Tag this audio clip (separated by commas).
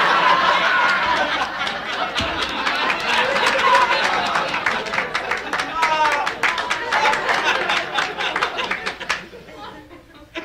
people sniggering